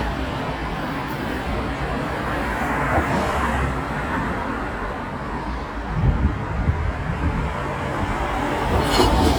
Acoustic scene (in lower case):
street